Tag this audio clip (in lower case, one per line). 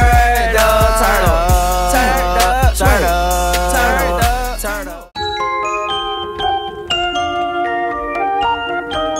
glockenspiel
music